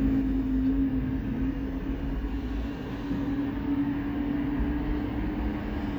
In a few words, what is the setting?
street